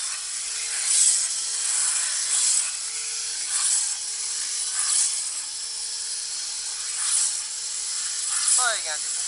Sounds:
vacuum cleaner

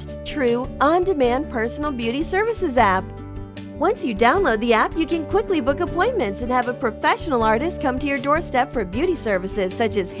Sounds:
music
speech

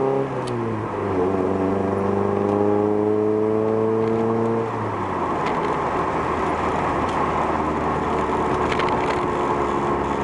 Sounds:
vehicle
car

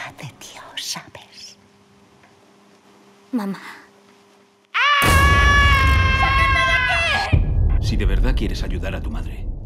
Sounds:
music
speech

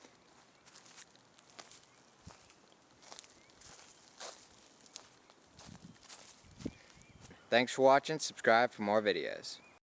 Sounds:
footsteps
speech
outside, rural or natural

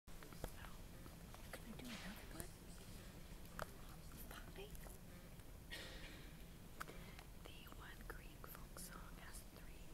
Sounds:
whispering
speech

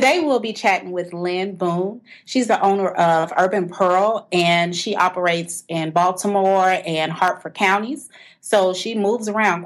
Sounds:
speech

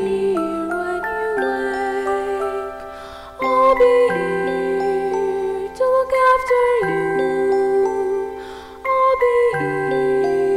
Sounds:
music

